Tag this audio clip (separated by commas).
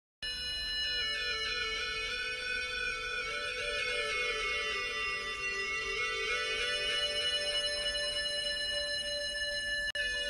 playing theremin